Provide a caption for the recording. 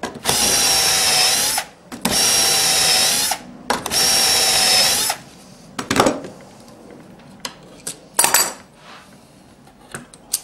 Electric drill being used